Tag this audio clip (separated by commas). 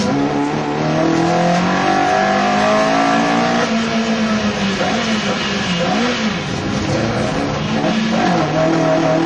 Motor vehicle (road), Vehicle, Car